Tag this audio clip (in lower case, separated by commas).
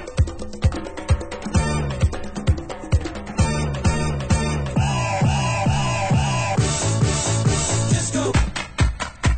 music